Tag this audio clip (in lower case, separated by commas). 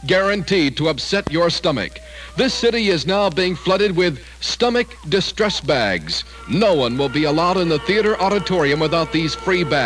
speech